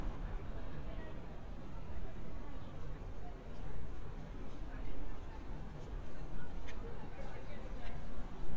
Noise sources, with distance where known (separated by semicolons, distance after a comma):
person or small group talking